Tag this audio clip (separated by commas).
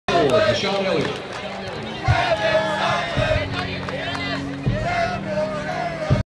Speech, Music